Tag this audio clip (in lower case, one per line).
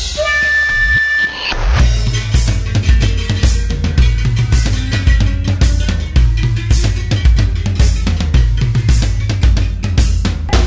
music